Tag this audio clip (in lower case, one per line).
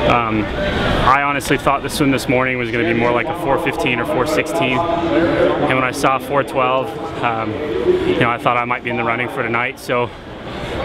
speech